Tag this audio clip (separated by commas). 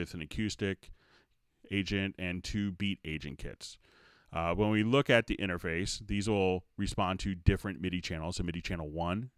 Speech